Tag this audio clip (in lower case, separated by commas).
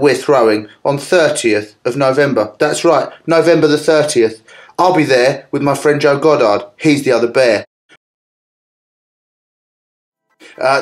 speech